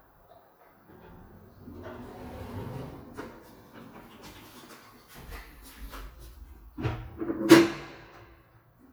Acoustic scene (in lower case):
elevator